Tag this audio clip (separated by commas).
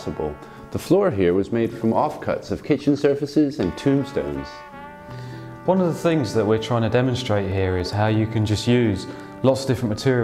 Speech, Music